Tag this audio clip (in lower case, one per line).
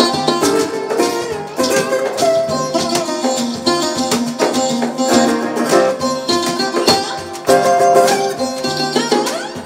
wedding music
strum
plucked string instrument
musical instrument
acoustic guitar
music
guitar